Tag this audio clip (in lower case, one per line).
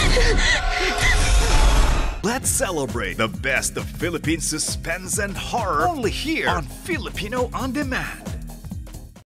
speech
rattle
music